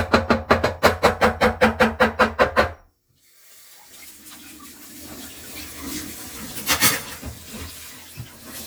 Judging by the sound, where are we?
in a kitchen